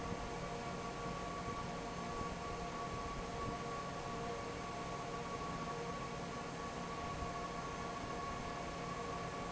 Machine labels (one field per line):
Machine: fan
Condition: normal